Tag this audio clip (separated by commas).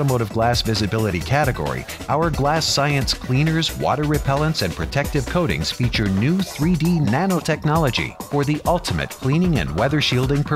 Music, Speech